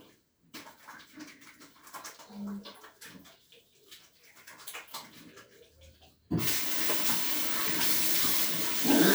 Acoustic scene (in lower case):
restroom